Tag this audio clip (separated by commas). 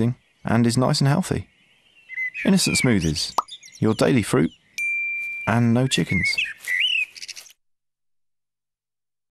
Speech